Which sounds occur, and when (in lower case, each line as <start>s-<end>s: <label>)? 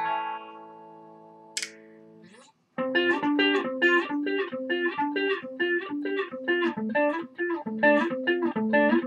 0.0s-2.5s: music
0.0s-9.0s: background noise
1.5s-1.7s: tick
2.8s-9.0s: music